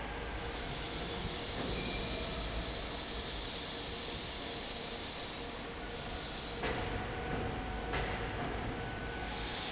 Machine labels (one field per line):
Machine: fan